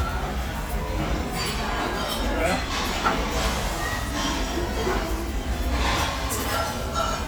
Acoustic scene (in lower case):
restaurant